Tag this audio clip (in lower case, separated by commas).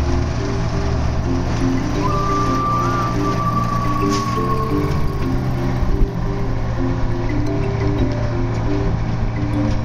sailing ship, music